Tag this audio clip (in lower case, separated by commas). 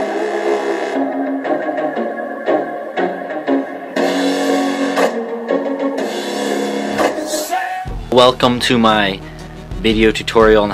music, speech